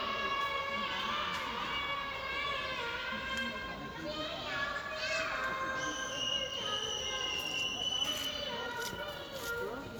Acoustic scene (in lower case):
park